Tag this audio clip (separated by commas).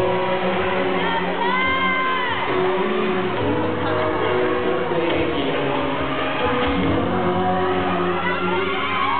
Music